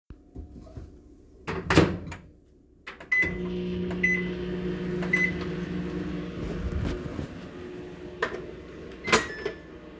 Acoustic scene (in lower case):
kitchen